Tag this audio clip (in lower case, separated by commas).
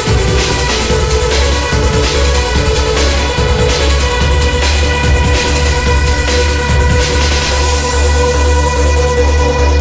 music, soundtrack music